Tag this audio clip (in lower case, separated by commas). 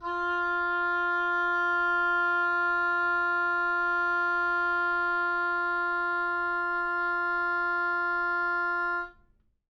wind instrument, music, musical instrument